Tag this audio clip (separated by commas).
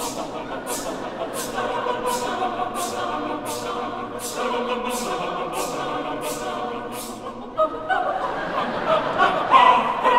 singing choir